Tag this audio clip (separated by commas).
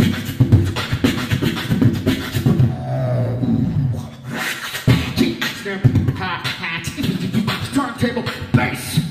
Beatboxing